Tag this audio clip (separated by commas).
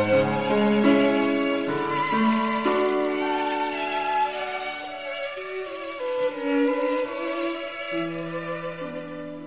fiddle, Bowed string instrument